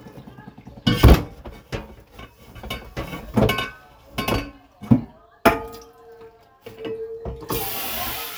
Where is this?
in a kitchen